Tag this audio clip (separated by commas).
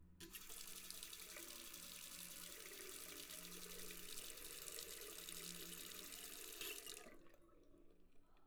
Domestic sounds, faucet